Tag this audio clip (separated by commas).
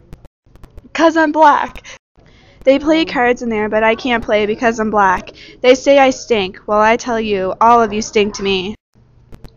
Speech